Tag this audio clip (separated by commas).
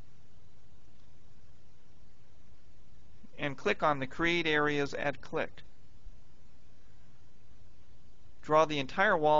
Speech